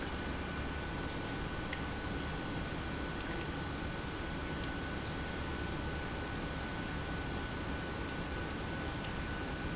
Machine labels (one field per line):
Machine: pump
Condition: normal